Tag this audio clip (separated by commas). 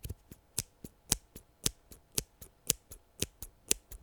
Scissors, home sounds